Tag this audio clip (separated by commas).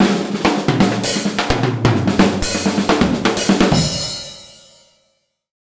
Percussion, Musical instrument, Music, Drum, Drum kit